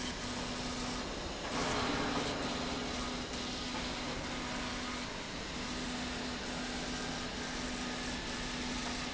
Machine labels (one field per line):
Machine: slide rail